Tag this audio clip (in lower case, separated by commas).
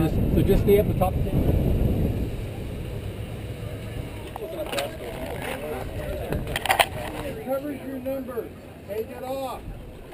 speech